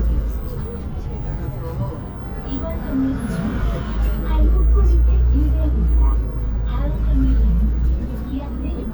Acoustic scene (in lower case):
bus